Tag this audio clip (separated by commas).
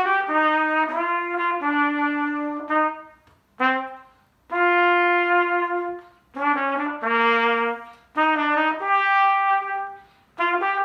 playing cornet